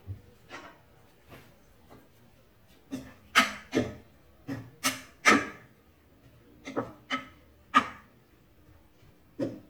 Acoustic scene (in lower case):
kitchen